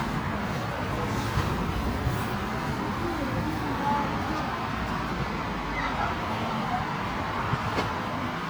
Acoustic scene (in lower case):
residential area